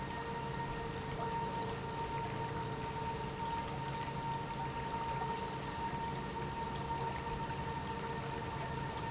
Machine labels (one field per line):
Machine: pump